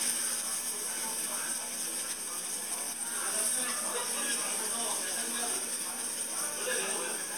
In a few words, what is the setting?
restaurant